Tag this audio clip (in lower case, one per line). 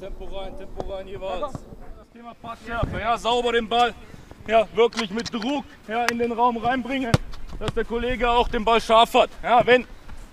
shot football